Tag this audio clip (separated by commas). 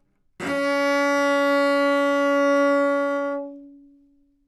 Musical instrument, Bowed string instrument, Music